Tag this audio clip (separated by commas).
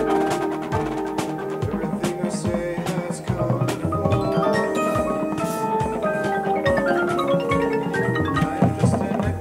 Music